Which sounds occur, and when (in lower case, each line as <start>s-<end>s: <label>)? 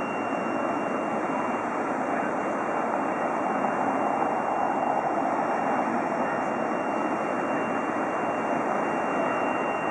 0.0s-2.8s: car horn
0.0s-9.9s: traffic noise
0.0s-9.9s: wind
3.8s-4.9s: car horn
5.2s-6.3s: car horn
7.2s-7.3s: human voice
8.7s-9.4s: car horn
9.4s-9.5s: tick